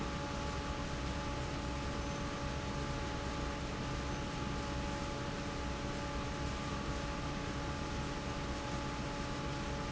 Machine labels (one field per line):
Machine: fan